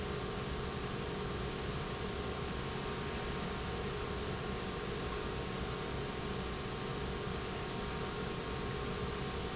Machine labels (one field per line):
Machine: pump